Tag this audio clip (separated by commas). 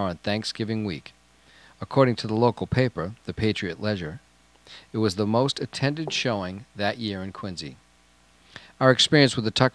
Speech